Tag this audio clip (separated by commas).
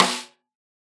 Musical instrument, Music, Drum, Snare drum, Percussion